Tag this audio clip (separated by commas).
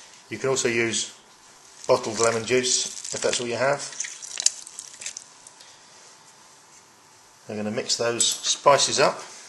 Speech